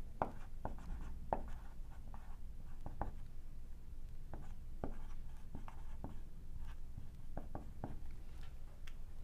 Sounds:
Writing

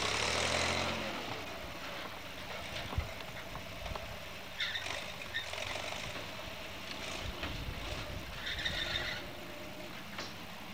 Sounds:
Vehicle, Truck

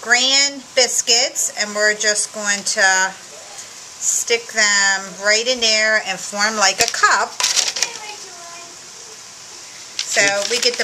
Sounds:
Speech

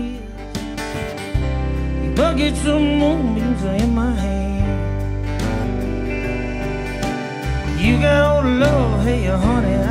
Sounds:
Music

